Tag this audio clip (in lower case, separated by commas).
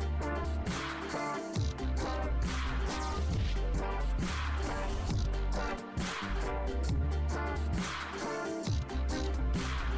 strum, guitar, acoustic guitar, musical instrument, electronic music, plucked string instrument, dubstep, music